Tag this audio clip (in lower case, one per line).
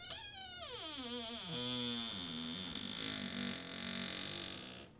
domestic sounds
squeak
door
cupboard open or close